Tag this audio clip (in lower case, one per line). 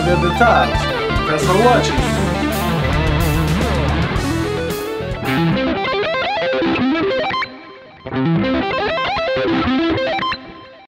plucked string instrument
musical instrument
guitar
strum
music
playing electric guitar
speech
electric guitar